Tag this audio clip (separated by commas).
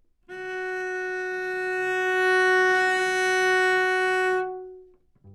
Bowed string instrument, Musical instrument, Music